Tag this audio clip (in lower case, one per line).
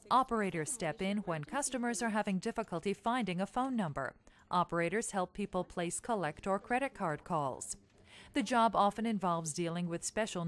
speech